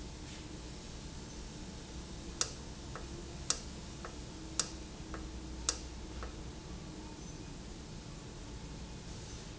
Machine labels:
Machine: valve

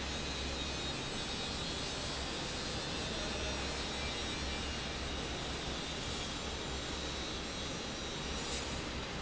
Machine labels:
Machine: fan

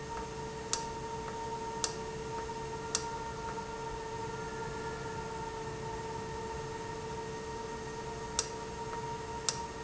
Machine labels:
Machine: valve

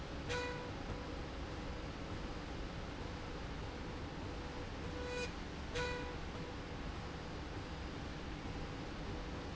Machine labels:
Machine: slide rail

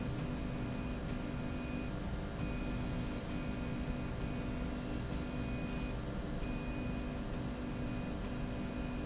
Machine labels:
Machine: slide rail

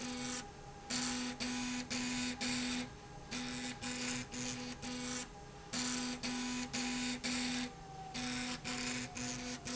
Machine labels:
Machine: slide rail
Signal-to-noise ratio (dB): 6 dB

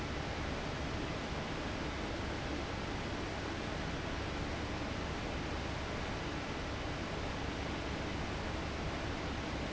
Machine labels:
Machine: fan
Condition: abnormal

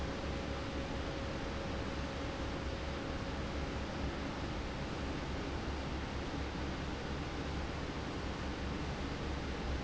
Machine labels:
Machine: fan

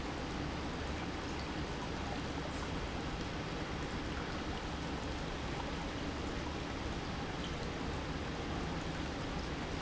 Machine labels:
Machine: pump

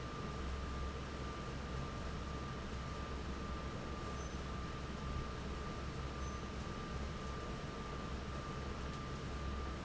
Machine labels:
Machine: fan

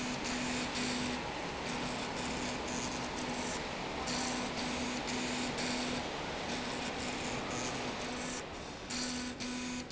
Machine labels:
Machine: slide rail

